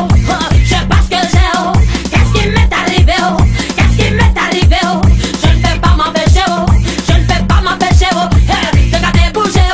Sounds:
music, pop music

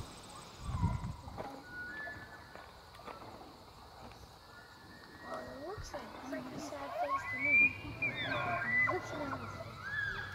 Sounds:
elk bugling

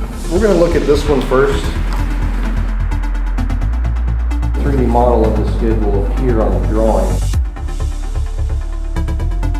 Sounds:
music, speech

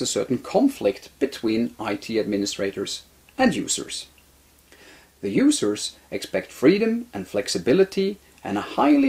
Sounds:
speech

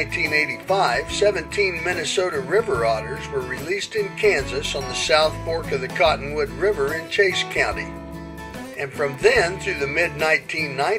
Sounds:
otter growling

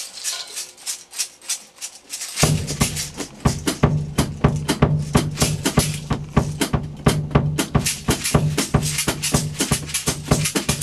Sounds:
playing guiro

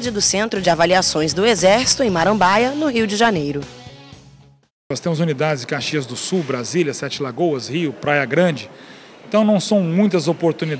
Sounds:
speech, music

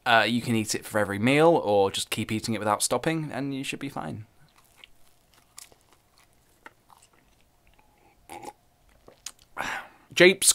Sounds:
inside a small room, speech

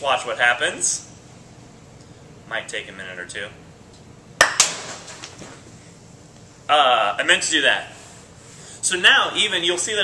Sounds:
speech, inside a small room

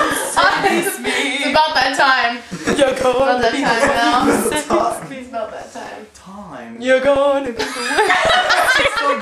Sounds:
speech

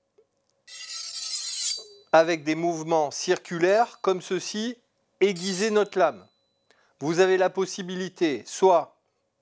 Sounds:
sharpen knife

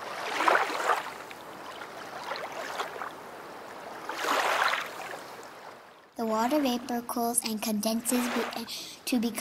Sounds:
stream, speech

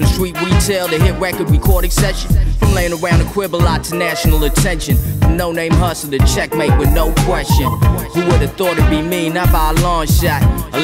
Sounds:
music

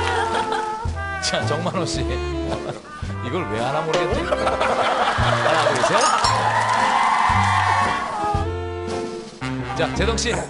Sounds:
speech, music

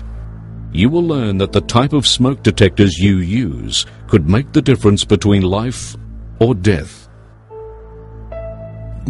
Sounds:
speech, monologue, music

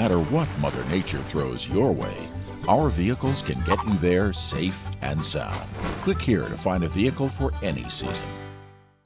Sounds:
music, speech

